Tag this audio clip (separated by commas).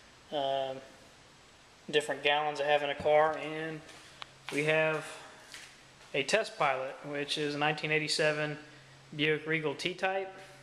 Speech